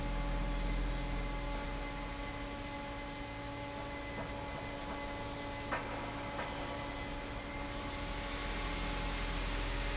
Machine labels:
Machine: fan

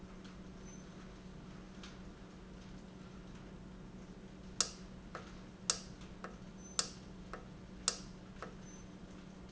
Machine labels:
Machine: valve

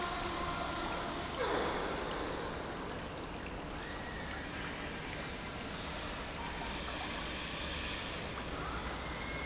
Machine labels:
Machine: pump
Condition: normal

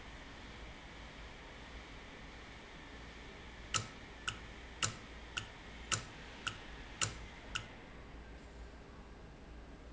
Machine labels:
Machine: valve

